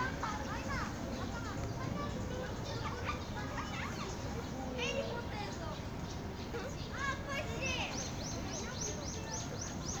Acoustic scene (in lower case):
park